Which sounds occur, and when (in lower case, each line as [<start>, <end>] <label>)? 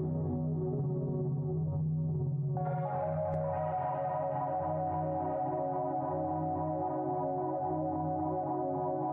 [0.00, 9.12] music